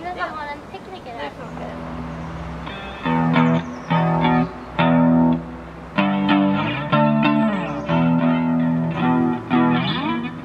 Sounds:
speech
music

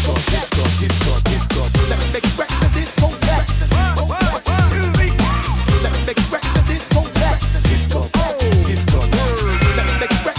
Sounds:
music

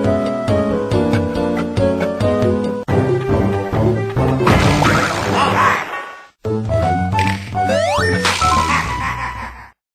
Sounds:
funny music
music

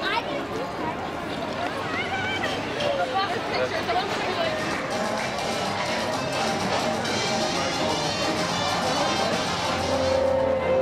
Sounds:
speech
music

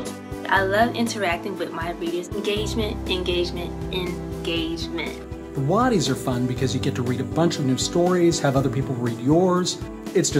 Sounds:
music
speech

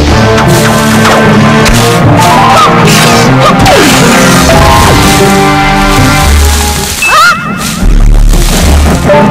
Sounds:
music

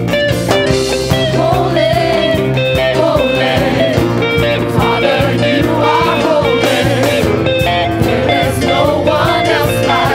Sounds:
music

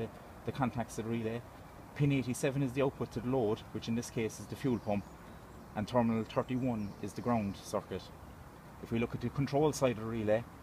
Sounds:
speech

